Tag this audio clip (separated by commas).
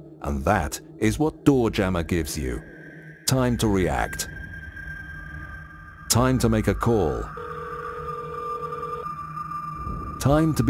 Speech